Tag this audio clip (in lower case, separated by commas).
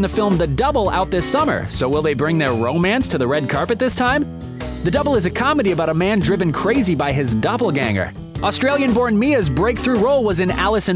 speech, music